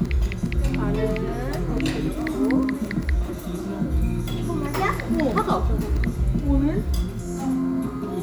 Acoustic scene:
restaurant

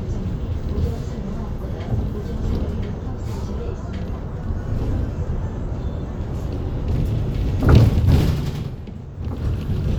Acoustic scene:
bus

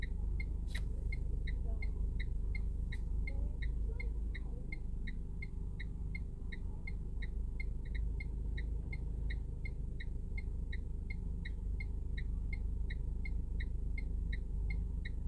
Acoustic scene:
car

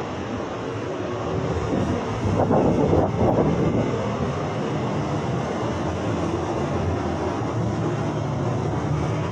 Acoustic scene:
subway station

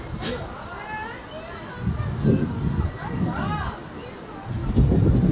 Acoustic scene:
residential area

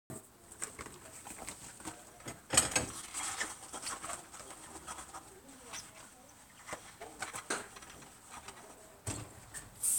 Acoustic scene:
kitchen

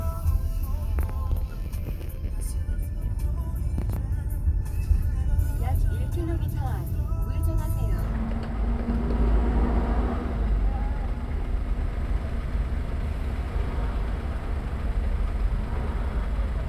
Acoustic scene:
car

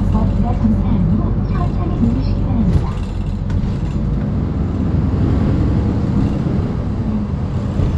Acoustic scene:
bus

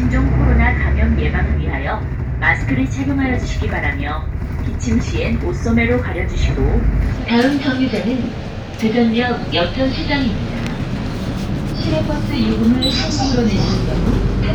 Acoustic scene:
bus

